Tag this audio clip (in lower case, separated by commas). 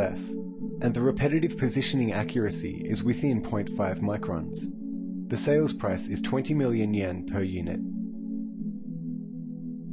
music, speech